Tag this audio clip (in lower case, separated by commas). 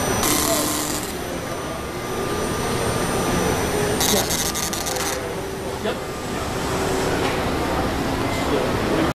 printer